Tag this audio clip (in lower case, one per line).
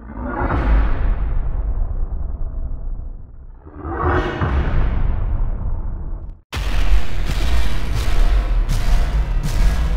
music